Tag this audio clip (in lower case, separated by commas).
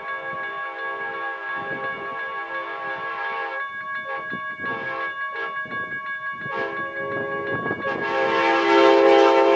steam whistle